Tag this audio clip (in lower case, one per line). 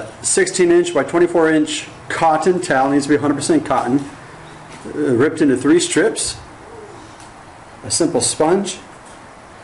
speech